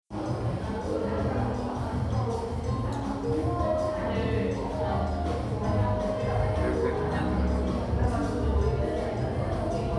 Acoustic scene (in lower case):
crowded indoor space